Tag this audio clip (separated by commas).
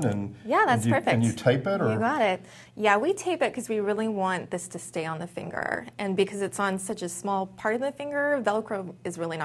Speech